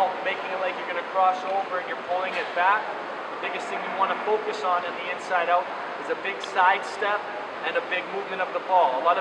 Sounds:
Speech

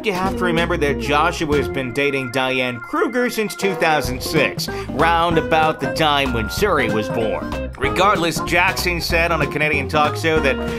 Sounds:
Music, Speech

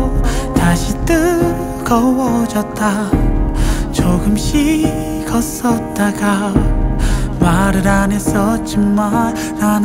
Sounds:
Music

